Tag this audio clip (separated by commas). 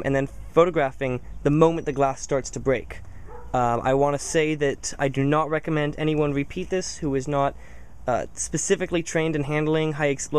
Speech